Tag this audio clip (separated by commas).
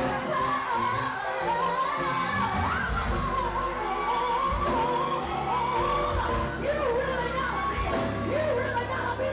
Music, Singing, inside a public space